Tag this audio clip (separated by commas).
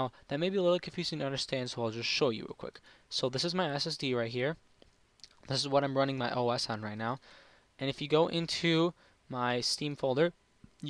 Speech